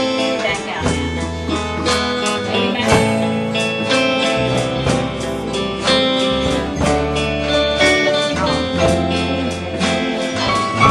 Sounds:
Musical instrument, Violin, Music, Speech

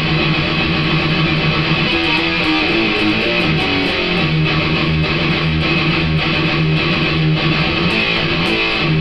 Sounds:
playing electric guitar, Music, Musical instrument, Guitar, Electric guitar

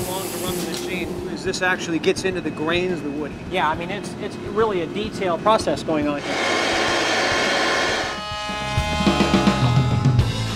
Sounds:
Speech, Music

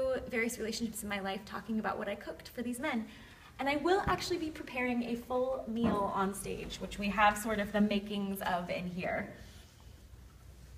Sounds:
Speech

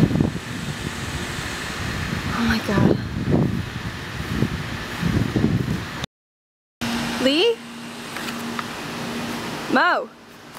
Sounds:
outside, rural or natural, Speech

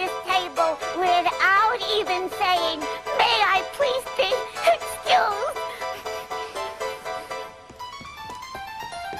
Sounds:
Speech, Music

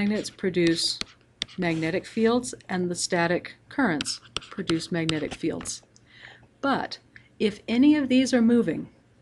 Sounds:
Speech

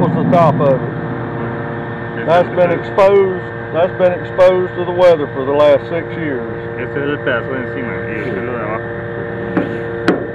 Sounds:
Speech

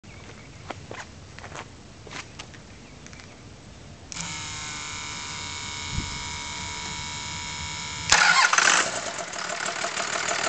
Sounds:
Engine

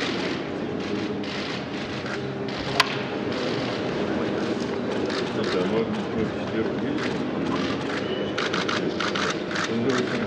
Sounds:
Speech

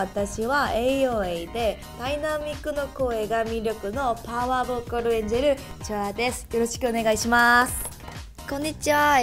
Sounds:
Speech, Music

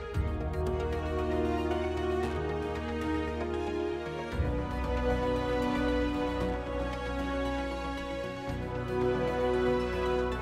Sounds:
Music

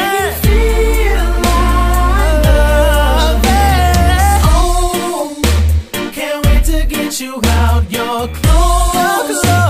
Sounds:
Music, Hip hop music, Rhythm and blues

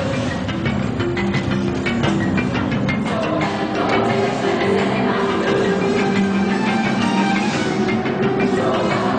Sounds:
Music

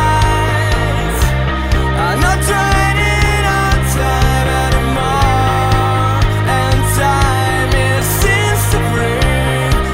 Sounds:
Music

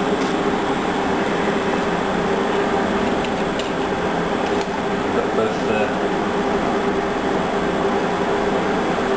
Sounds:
Speech

